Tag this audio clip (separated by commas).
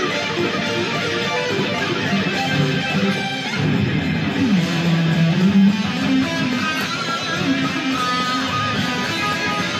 Musical instrument, Plucked string instrument, Strum, Guitar, Music